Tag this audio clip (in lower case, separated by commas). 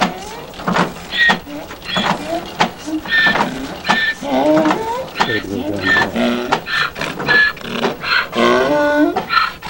speech, outside, rural or natural